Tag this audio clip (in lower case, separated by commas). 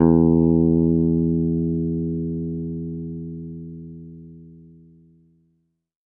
bass guitar, musical instrument, guitar, plucked string instrument, music